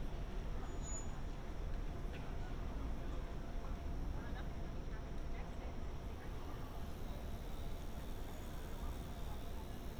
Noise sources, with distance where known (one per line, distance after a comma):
unidentified human voice